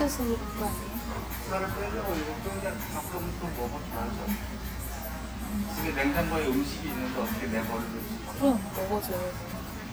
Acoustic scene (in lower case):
restaurant